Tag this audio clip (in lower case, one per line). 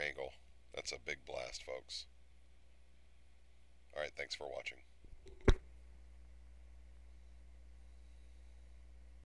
speech